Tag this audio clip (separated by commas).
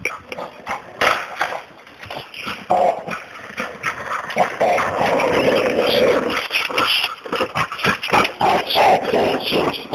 Animal, Dog, Domestic animals